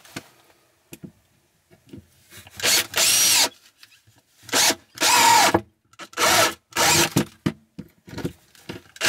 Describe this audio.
A drill drills a hole into a piece of wood